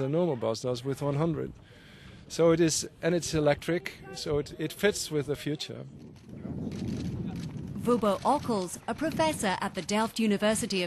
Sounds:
speech

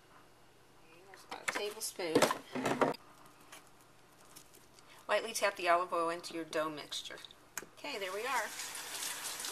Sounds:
water

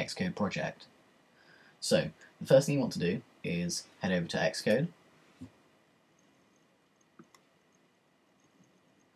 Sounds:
speech

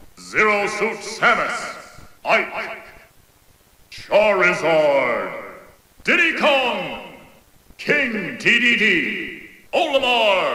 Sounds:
speech

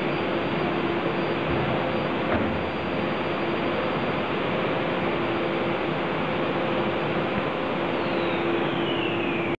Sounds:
sliding door

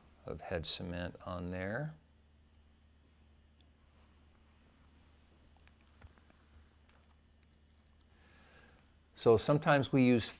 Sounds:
speech

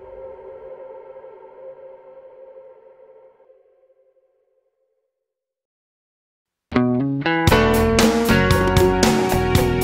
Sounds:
music, sonar

